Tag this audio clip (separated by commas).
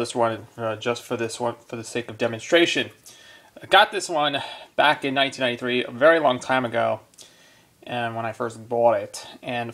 Speech